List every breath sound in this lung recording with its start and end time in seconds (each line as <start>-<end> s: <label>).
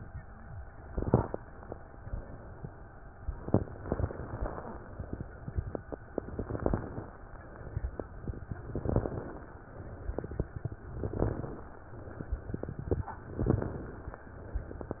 0.82-1.41 s: inhalation
0.82-1.41 s: crackles
6.19-7.17 s: inhalation
6.19-7.17 s: crackles
8.65-9.47 s: inhalation
8.65-9.47 s: crackles
10.95-11.77 s: inhalation
10.95-11.77 s: crackles
13.38-14.19 s: inhalation
13.38-14.19 s: crackles